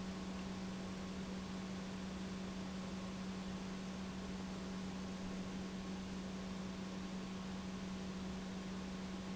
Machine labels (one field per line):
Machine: pump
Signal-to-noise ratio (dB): 6 dB